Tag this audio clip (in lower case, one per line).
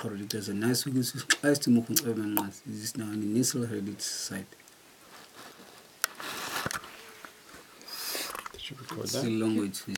speech